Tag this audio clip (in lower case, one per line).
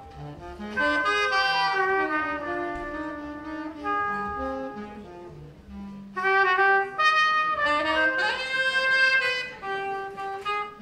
music
jazz